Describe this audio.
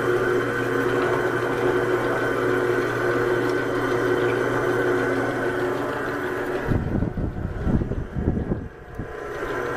A tool motor is running, tapping is present in the background, and the wind blows